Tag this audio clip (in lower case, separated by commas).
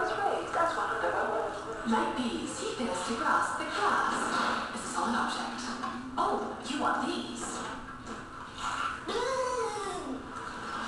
speech